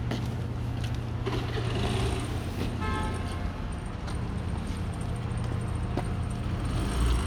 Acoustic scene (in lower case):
residential area